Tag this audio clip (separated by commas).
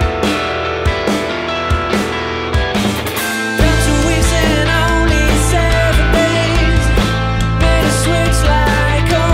Music, Independent music, Musical instrument, Plucked string instrument, Guitar